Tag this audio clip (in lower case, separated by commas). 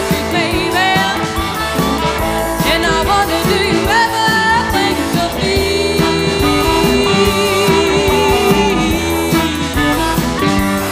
music, plucked string instrument, electric guitar, musical instrument, guitar